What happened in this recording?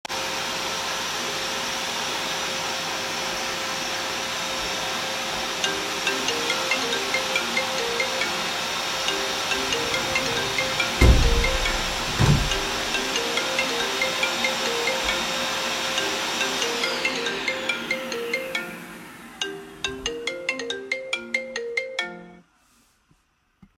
My phone started ringing. So I left the vacuum cleaner, closed the window and picked up my phone.